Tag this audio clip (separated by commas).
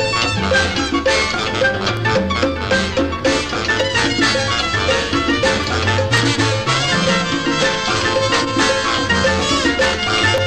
Musical instrument, Music of Latin America, Drum, Music